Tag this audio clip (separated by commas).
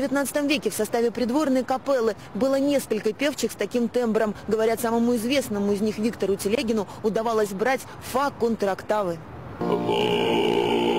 Speech